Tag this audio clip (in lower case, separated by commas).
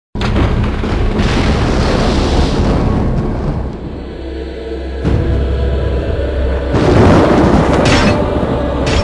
music, inside a large room or hall, eruption